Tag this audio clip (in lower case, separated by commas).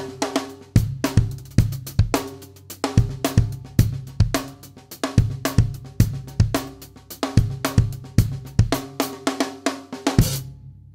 playing snare drum